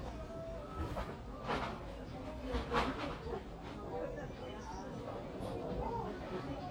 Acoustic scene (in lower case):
crowded indoor space